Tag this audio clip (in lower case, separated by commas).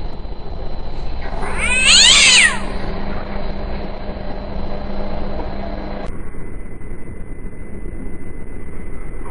cat, meow, caterwaul, animal, pets